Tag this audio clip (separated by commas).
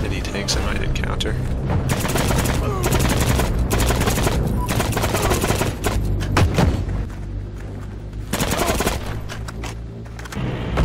outside, rural or natural, Speech